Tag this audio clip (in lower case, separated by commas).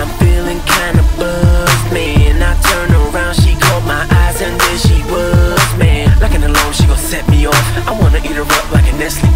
music